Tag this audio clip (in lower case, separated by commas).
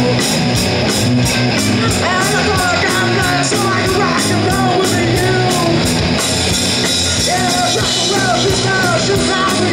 music, rock and roll, roll